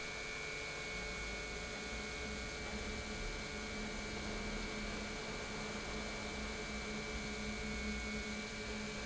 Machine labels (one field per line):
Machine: pump